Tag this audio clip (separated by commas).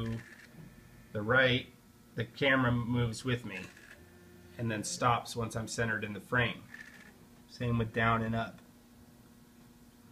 Speech